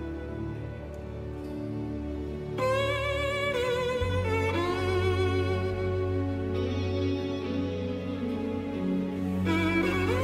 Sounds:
music

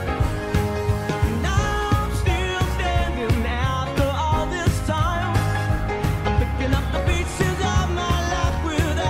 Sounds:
child singing

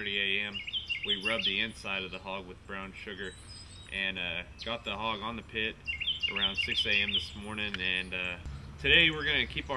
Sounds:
speech

